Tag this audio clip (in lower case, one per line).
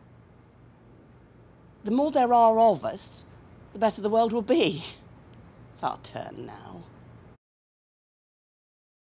speech